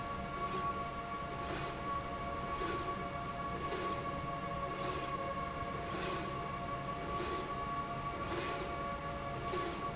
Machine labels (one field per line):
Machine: slide rail